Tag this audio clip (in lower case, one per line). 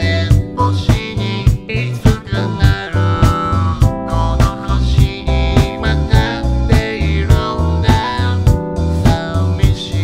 music